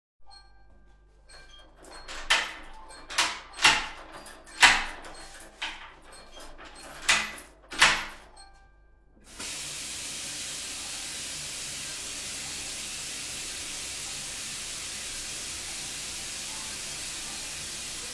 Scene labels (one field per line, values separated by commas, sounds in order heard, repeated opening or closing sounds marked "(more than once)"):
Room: office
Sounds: phone ringing, running water, door (more than once)